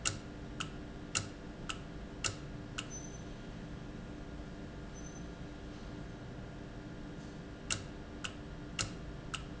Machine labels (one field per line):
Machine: valve